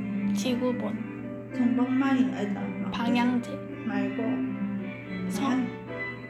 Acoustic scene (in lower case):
cafe